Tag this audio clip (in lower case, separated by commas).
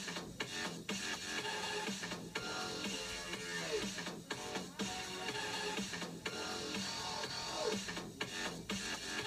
music